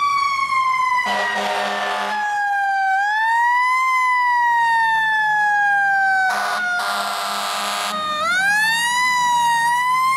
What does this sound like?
An emergency vehicle blares its horn as its siren screams